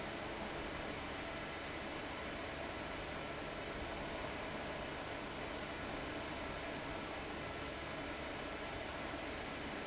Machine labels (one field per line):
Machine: fan